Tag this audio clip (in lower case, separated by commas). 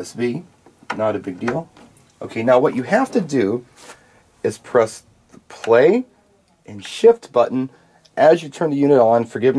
speech